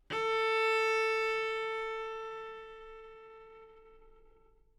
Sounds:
musical instrument, music, bowed string instrument

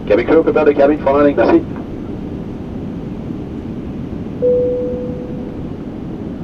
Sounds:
vehicle, aircraft, airplane

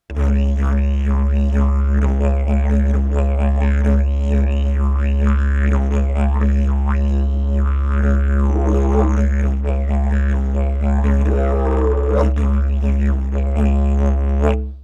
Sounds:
music, musical instrument

